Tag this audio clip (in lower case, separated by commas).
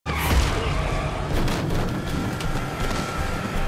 car, music, car passing by, vehicle